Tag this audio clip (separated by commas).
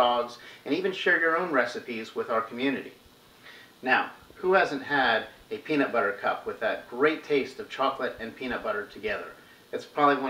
Speech